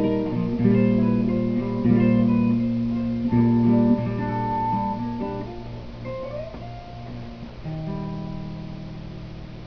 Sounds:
Music, inside a small room, Guitar, Plucked string instrument, Musical instrument

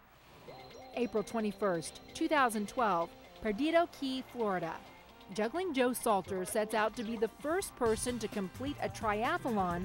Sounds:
Music, Speech

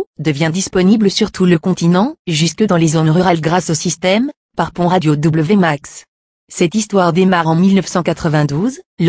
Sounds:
Speech

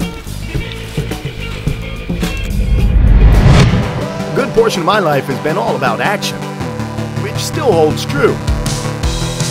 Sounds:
Music, Speech

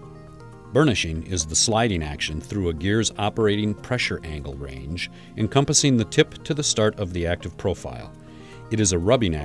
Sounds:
Music, Speech

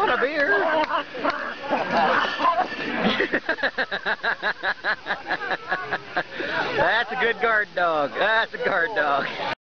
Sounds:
Whimper (dog), Speech, Animal, Dog, pets

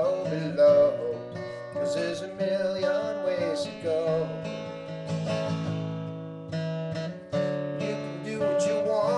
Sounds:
Music

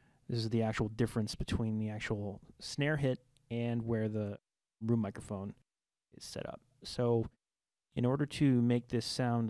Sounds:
Speech

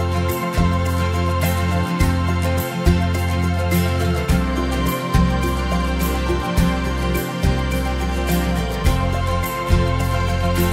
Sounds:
Music

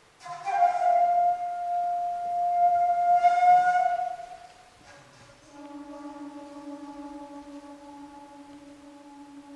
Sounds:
Music, inside a large room or hall, Musical instrument

